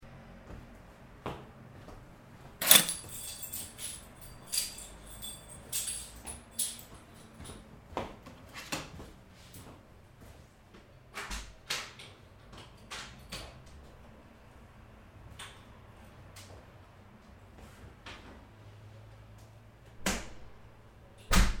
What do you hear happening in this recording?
I walked to the microphone, as my keys were there. I took them, started playing with the key in my hand, and opened the door. Finally, I closed it after I left the room.